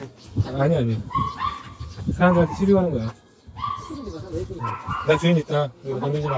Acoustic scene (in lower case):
residential area